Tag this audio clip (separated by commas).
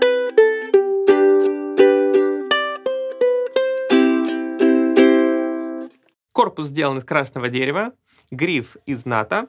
playing ukulele